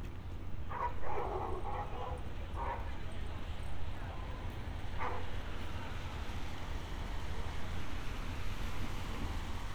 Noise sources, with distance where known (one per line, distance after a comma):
dog barking or whining